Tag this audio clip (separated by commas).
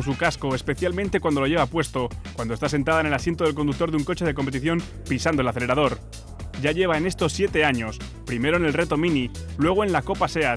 Speech, Music